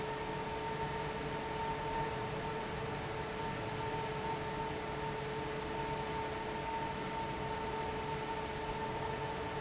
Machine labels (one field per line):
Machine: fan